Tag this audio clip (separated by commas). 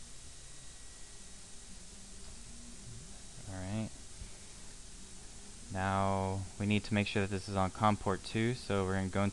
Speech